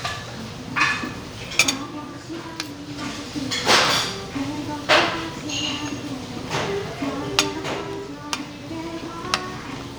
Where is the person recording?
in a restaurant